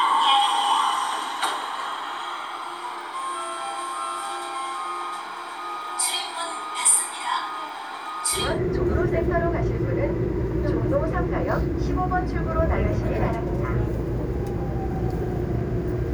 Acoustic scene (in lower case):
subway train